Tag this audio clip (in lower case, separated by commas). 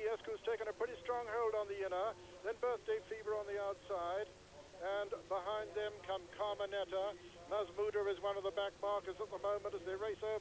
speech